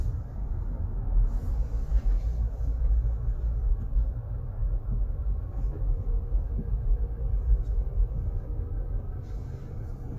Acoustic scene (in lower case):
car